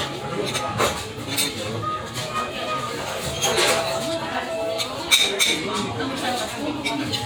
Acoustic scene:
restaurant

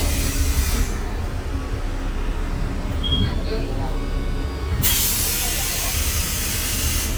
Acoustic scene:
bus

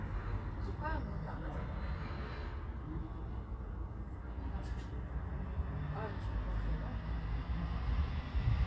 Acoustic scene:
residential area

